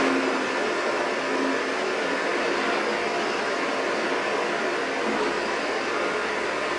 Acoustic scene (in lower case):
street